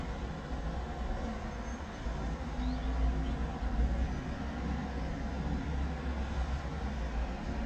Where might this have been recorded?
in a residential area